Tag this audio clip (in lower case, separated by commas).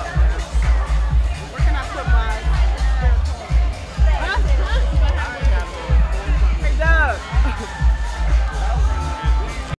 house music, speech, music